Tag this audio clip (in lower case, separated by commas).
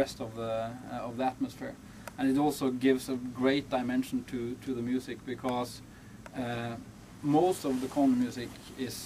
speech